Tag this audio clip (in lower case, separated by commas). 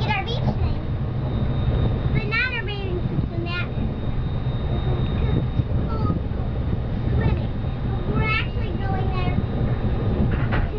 speech, vehicle